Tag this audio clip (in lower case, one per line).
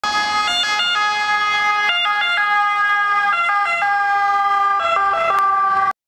car passing by